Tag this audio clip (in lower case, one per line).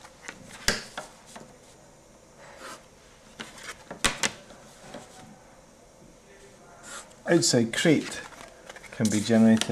inside a small room
speech